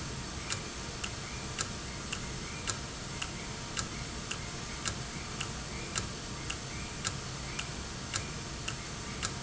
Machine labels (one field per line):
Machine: valve